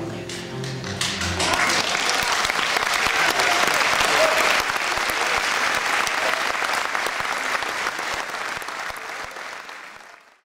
Music trails to an end and applause starts